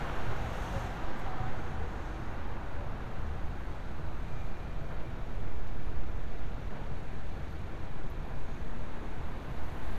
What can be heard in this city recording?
engine of unclear size